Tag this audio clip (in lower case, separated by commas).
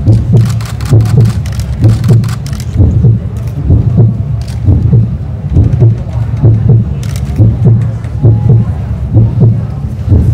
speech, heartbeat